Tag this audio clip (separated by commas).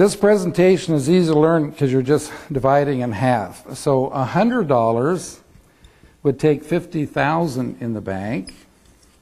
Speech